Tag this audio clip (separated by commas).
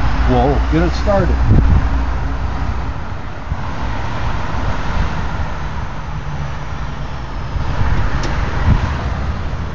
Vehicle, Speech, Truck